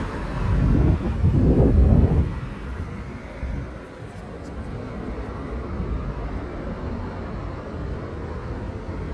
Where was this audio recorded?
on a street